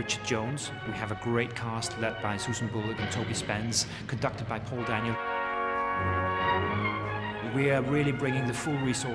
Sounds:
Speech, Music, Opera

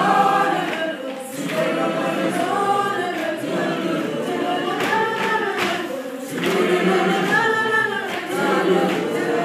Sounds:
Choir

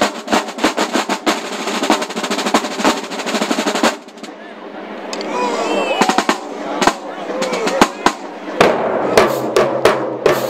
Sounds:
playing snare drum

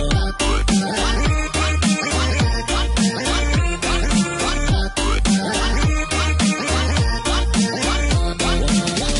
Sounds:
Music

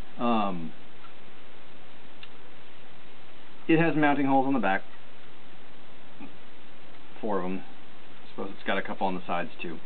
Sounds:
Speech

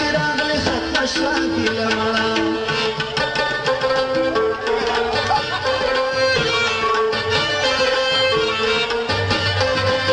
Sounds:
Tabla, Middle Eastern music, Music

